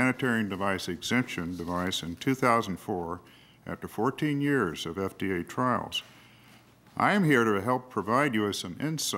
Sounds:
speech

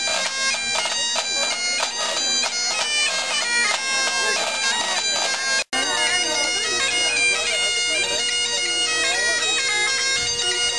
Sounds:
traditional music
speech
music

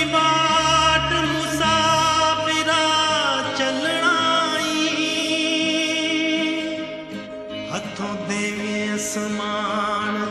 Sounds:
music

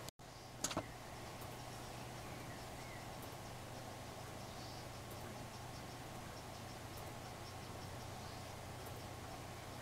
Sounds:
tick

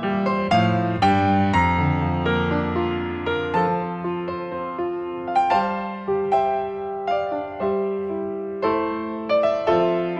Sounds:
music

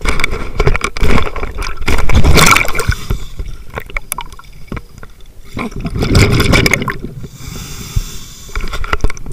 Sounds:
liquid

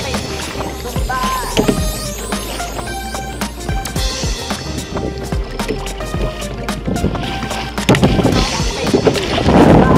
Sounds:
canoe
music

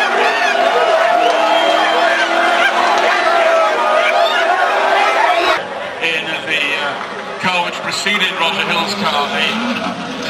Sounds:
shout
speech

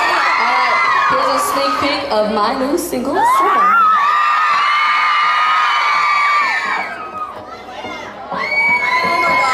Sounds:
speech
music

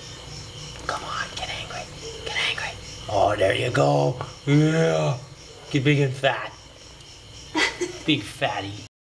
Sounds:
speech

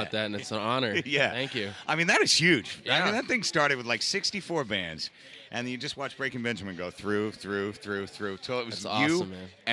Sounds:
speech

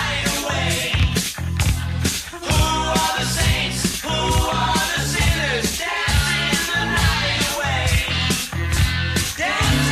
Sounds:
rock and roll
pop music
punk rock
music

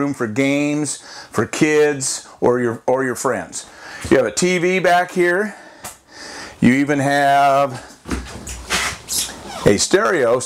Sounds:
sliding door
speech

